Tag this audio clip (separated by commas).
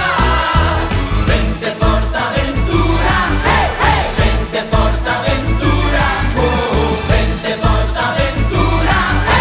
Music